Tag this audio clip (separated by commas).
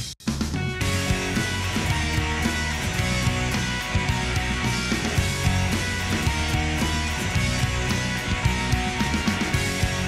Music